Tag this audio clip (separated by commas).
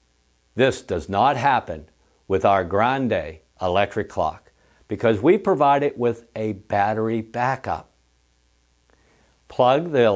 Speech